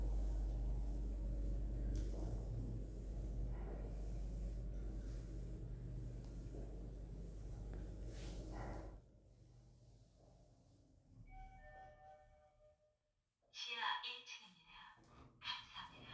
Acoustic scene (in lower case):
elevator